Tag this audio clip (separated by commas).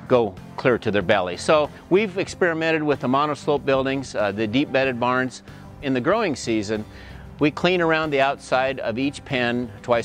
Music, Speech